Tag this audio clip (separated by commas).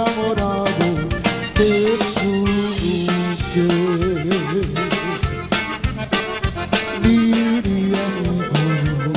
Blues, Music